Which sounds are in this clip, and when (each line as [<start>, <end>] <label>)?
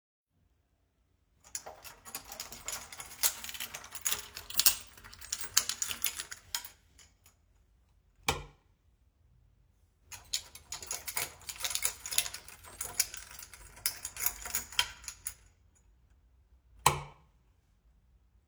[1.39, 6.94] keys
[8.13, 8.52] light switch
[10.03, 15.51] keys
[16.71, 17.23] light switch